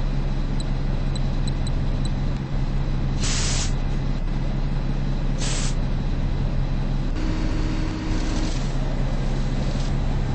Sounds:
vehicle, bus

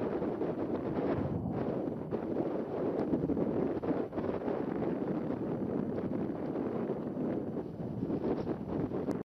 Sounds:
eruption

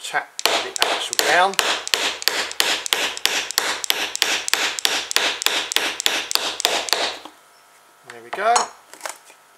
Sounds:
speech

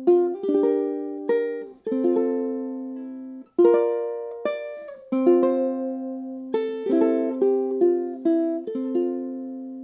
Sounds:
music, ukulele, inside a small room

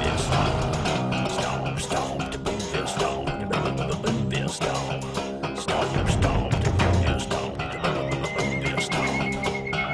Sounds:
music

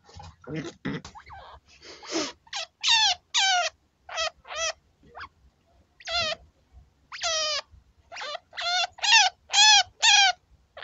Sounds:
chinchilla barking

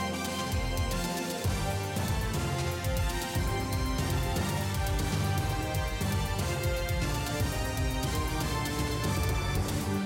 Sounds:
music

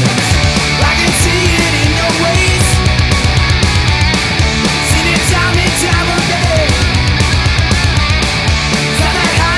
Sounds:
rock and roll, punk rock, music, grunge, heavy metal

